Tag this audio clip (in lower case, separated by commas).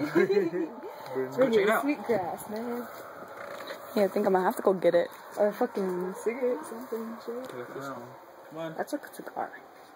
wind noise (microphone), speech